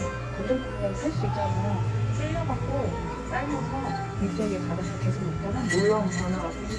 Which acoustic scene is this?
cafe